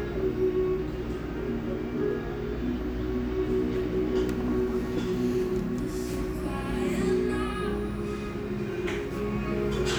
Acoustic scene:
cafe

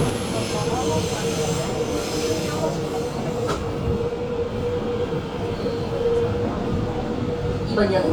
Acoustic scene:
subway train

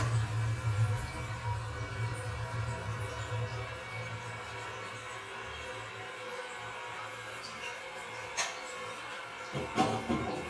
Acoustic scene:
restroom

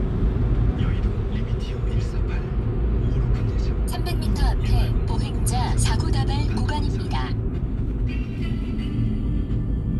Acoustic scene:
car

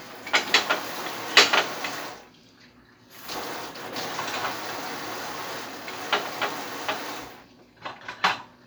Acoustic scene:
kitchen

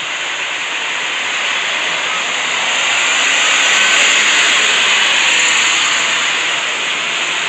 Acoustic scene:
street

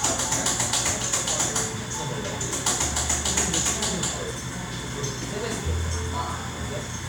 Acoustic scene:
cafe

